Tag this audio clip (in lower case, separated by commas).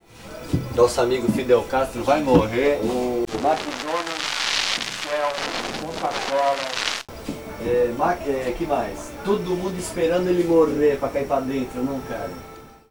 human voice, speech